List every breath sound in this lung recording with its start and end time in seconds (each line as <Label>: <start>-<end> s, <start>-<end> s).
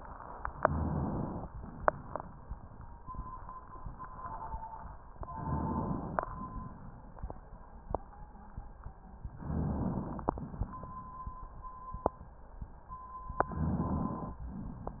Inhalation: 0.49-1.44 s, 5.28-6.22 s, 9.47-10.42 s, 13.41-14.42 s
Exhalation: 1.52-2.47 s, 6.32-7.27 s, 10.46-11.46 s
Rhonchi: 0.49-1.44 s, 9.47-10.00 s, 13.53-14.16 s